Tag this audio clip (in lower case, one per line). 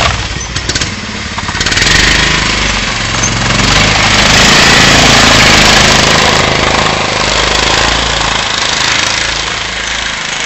vehicle